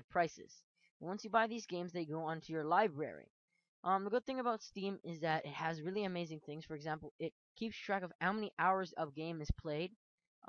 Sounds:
Speech

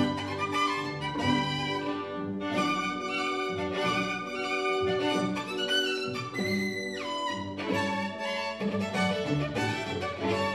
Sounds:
fiddle, Musical instrument, Music

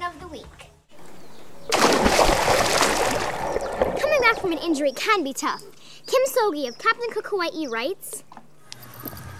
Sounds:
Speech

